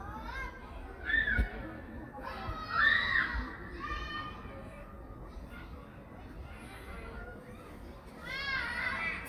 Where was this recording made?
in a park